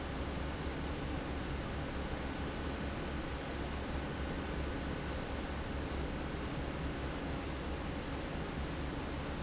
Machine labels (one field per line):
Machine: fan